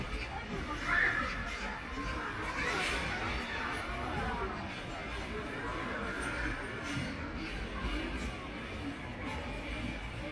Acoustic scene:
park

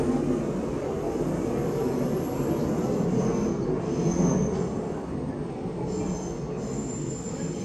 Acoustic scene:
subway train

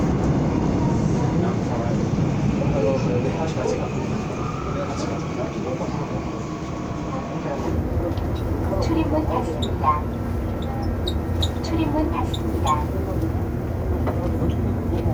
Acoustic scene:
subway train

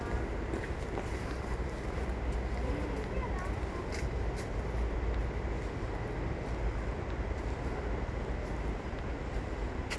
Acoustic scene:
residential area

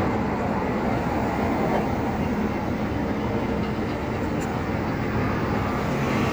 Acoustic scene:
street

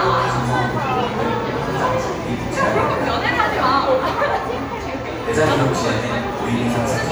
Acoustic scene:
crowded indoor space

